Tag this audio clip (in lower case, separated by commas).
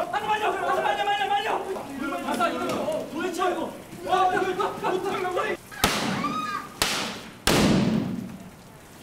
speech